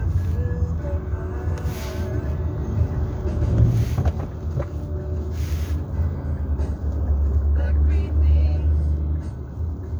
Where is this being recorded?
in a car